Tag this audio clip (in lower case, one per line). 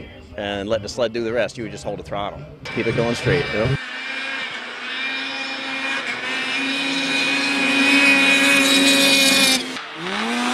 driving snowmobile